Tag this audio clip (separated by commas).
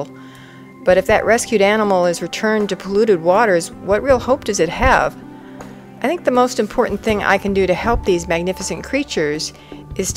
Speech